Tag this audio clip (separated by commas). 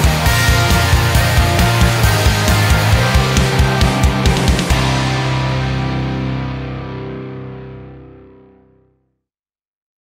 Music